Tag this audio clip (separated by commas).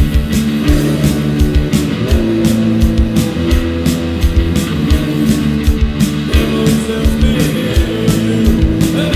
Music